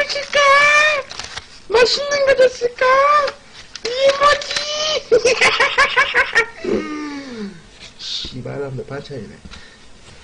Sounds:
snicker, people sniggering, speech

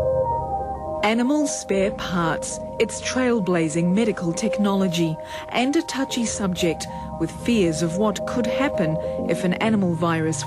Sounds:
music, speech

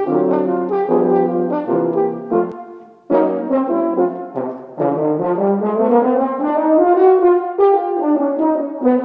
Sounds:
brass instrument, french horn, trombone, music

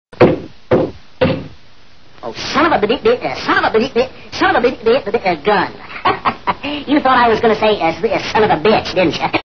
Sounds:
speech

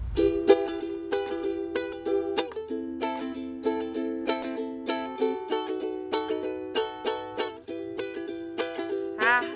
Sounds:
playing ukulele

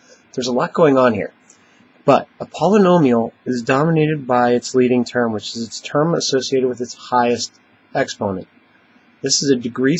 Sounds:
speech

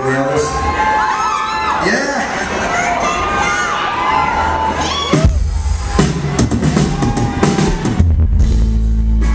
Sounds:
music, speech

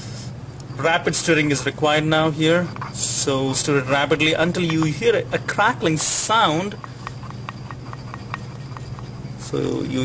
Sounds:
inside a small room, speech

